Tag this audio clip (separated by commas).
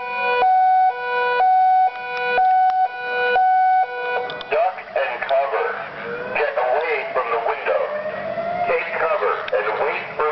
Speech